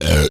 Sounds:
burping

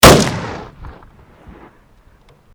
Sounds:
gunshot, explosion

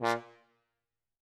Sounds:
music, brass instrument, musical instrument

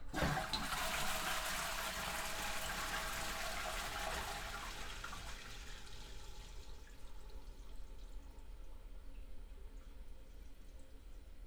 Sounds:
home sounds, toilet flush

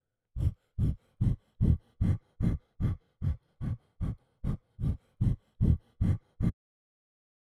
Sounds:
breathing, respiratory sounds

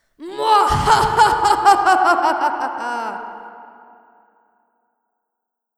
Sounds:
laughter, human voice

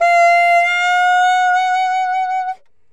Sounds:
music, musical instrument, woodwind instrument

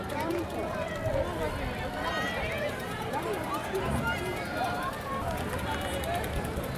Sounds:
crowd, human group actions

